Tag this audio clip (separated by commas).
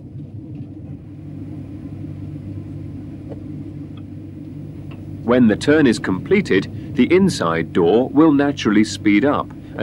Speech, Rumble